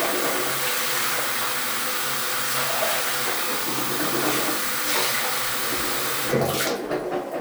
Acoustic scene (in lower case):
restroom